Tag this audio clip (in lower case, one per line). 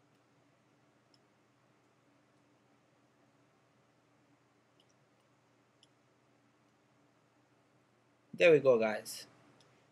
clicking